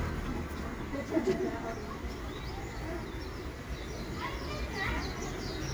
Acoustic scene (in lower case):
residential area